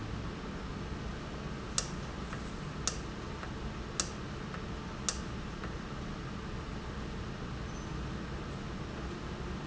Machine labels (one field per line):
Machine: valve